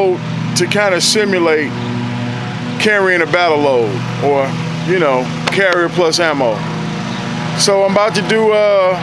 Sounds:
speech

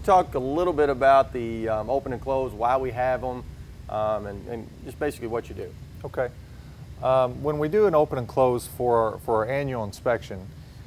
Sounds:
speech

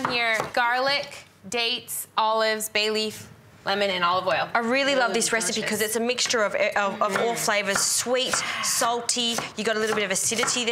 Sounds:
speech

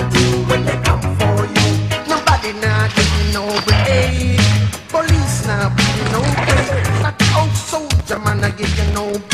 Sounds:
music

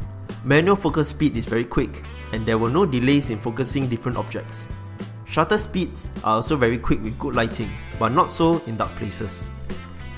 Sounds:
speech
music

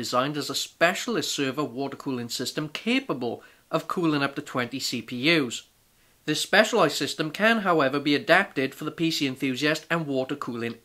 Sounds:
speech

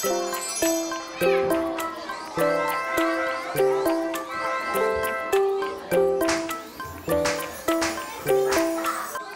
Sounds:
child speech
speech
music

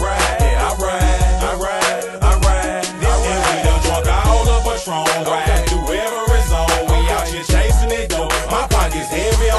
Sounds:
music

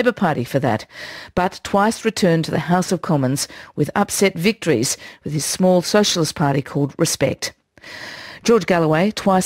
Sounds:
speech

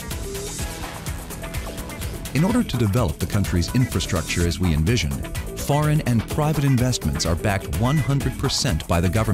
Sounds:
speech
music

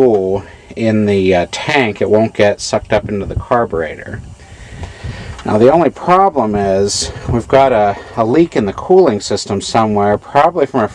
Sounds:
speech

